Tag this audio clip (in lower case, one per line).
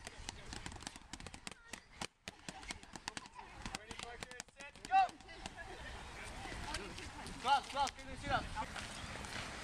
speech
clip-clop